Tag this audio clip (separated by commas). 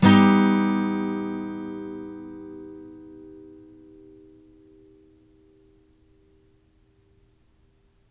Guitar, Acoustic guitar, Musical instrument, Strum, Plucked string instrument, Music